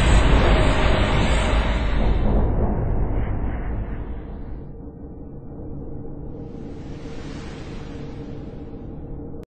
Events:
0.0s-9.4s: sound effect
2.8s-2.9s: tick

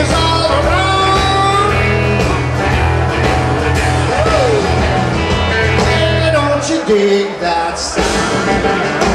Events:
0.0s-1.7s: male singing
0.0s-9.1s: crowd
0.0s-9.1s: music
4.2s-4.8s: human sounds
5.8s-7.9s: male singing

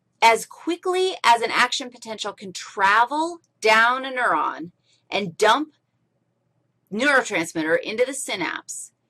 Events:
0.0s-9.0s: background noise
0.2s-3.4s: woman speaking
3.4s-3.5s: tick
3.6s-4.8s: woman speaking
4.2s-4.2s: tick
4.8s-5.1s: breathing
5.1s-5.8s: woman speaking
5.7s-6.0s: breathing
6.9s-8.9s: woman speaking

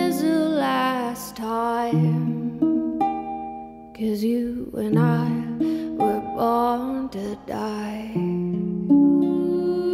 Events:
5.6s-5.9s: breathing
8.1s-9.9s: music
9.4s-9.9s: female singing

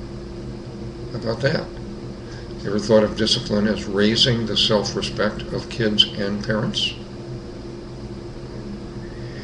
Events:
0.0s-9.4s: mechanisms
1.1s-1.6s: man speaking
2.2s-2.5s: breathing
2.6s-7.0s: man speaking
9.0s-9.4s: breathing

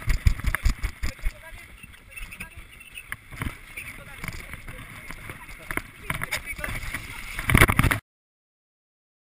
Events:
0.0s-1.3s: run
0.0s-7.9s: sound effect
0.0s-8.0s: wind
0.4s-0.6s: male speech
1.0s-1.6s: male speech
1.5s-2.4s: generic impact sounds
2.0s-2.4s: male speech
2.6s-3.2s: generic impact sounds
3.3s-3.5s: generic impact sounds
3.6s-3.9s: generic impact sounds
3.7s-4.2s: male speech
4.1s-4.7s: generic impact sounds
4.6s-5.0s: surface contact
4.9s-5.3s: generic impact sounds
5.2s-5.5s: male speech
5.4s-5.8s: generic impact sounds
6.0s-7.0s: male speech
6.0s-6.4s: generic impact sounds
6.5s-7.0s: generic impact sounds
6.6s-7.5s: surface contact
7.1s-7.4s: male speech
7.3s-8.0s: generic impact sounds
7.6s-7.8s: male speech

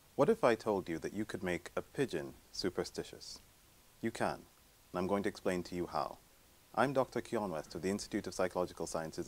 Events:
0.0s-9.2s: background noise
0.2s-1.8s: man speaking
1.9s-2.3s: man speaking
2.5s-3.4s: man speaking
4.0s-4.4s: man speaking
4.9s-6.1s: man speaking
6.7s-9.2s: man speaking

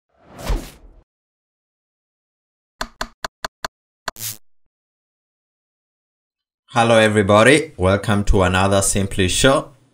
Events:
0.1s-1.0s: sound effect
2.8s-3.2s: sound effect
3.4s-3.5s: sound effect
3.6s-3.7s: sound effect
4.0s-4.4s: sound effect
6.7s-9.7s: male speech
6.7s-9.9s: background noise

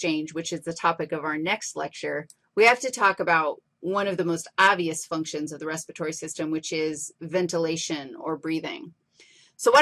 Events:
0.0s-2.2s: female speech
0.0s-9.8s: background noise
2.2s-2.3s: clicking
2.5s-3.6s: female speech
3.8s-7.1s: female speech
7.2s-8.9s: female speech
9.1s-9.5s: breathing
9.6s-9.8s: female speech

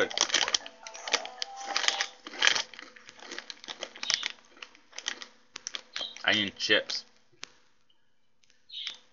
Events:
0.0s-0.1s: human voice
0.0s-2.3s: music
0.0s-9.1s: background noise
0.0s-2.2s: video game sound
0.1s-0.6s: crushing
0.6s-0.7s: tick
0.8s-0.9s: tick
0.8s-1.3s: crushing
1.2s-1.3s: tick
1.4s-1.4s: tick
1.5s-2.1s: crushing
2.2s-2.6s: crushing
2.7s-2.9s: crushing
2.9s-3.0s: tick
3.0s-3.1s: tick
3.1s-3.5s: crushing
3.6s-3.8s: crushing
3.9s-4.3s: crushing
4.0s-4.2s: bird
4.6s-4.7s: tick
4.9s-5.3s: crushing
5.5s-5.8s: crushing
5.5s-5.6s: tick
5.9s-6.0s: crushing
6.0s-6.2s: bird
6.1s-6.4s: crushing
6.2s-7.0s: male speech
6.4s-6.6s: crushing
6.8s-7.2s: crushing
7.4s-7.5s: tick
7.4s-7.7s: crushing
7.8s-7.8s: tick
8.4s-8.5s: crushing
8.7s-9.0s: bird
8.8s-8.9s: tick
8.9s-9.0s: crushing

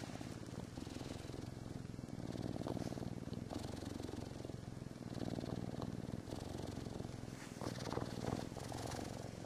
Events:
0.0s-9.4s: mechanisms
0.0s-9.4s: purr

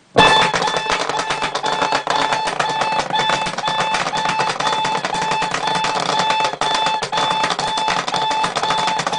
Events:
0.1s-9.1s: alarm clock
0.1s-9.1s: generic impact sounds

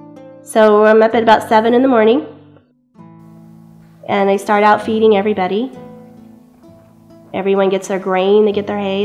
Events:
0.0s-9.0s: music
0.5s-2.3s: female speech
4.0s-5.8s: female speech
7.3s-9.0s: female speech

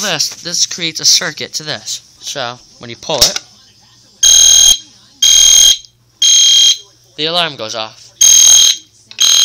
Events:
0.0s-1.9s: man speaking
0.0s-9.4s: mechanisms
2.1s-2.5s: man speaking
2.8s-3.4s: man speaking
2.9s-3.4s: generic impact sounds
3.0s-3.0s: tick
3.3s-3.4s: tick
3.5s-4.2s: man speaking
4.2s-4.8s: fire alarm
4.7s-5.2s: man speaking
5.2s-5.9s: fire alarm
5.8s-5.8s: tick
6.2s-6.8s: fire alarm
6.8s-7.1s: man speaking
7.2s-7.8s: man speaking
8.0s-8.1s: man speaking
8.2s-8.8s: fire alarm
9.1s-9.1s: tick
9.2s-9.4s: fire alarm

